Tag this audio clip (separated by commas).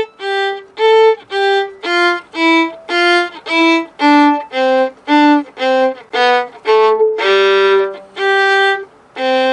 Musical instrument, Violin, Music